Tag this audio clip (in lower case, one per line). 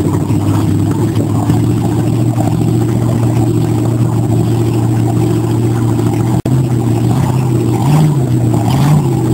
boat
vehicle
speedboat acceleration
motorboat